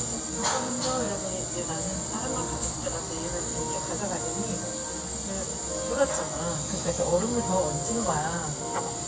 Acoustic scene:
cafe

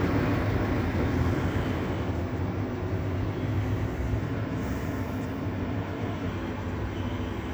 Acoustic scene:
residential area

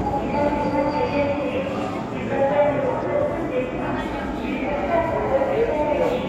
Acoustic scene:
subway station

